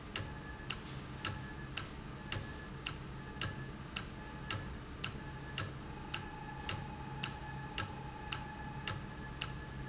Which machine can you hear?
valve